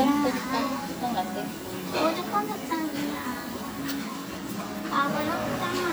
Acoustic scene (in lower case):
cafe